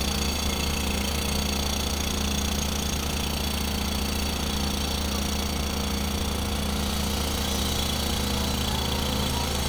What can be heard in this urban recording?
jackhammer